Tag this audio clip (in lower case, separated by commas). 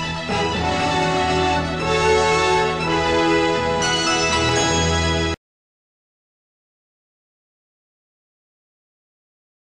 music